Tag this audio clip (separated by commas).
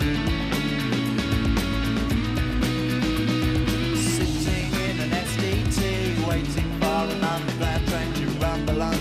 Music